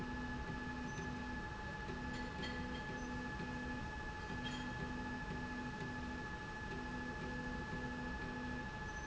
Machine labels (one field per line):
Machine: slide rail